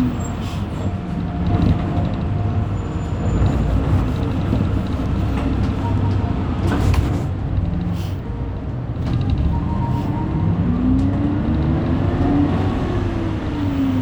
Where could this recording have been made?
on a bus